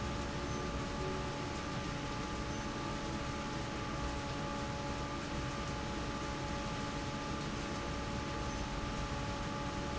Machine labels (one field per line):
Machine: fan